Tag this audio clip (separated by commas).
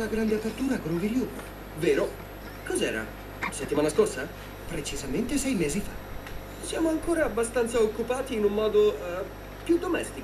Speech